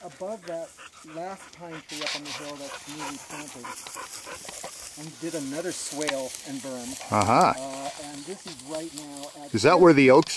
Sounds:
animal

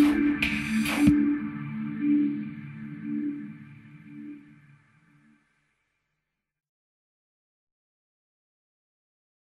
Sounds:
music

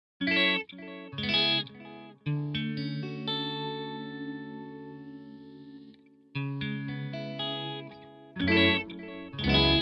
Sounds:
effects unit
chorus effect
music

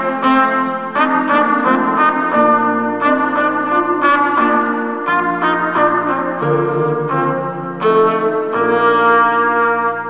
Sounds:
playing trumpet

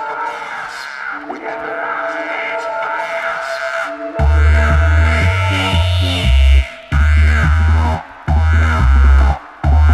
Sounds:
music
drum and bass
electronic music

